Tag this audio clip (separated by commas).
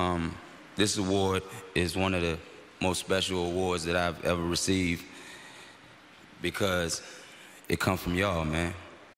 Male speech, Speech, Narration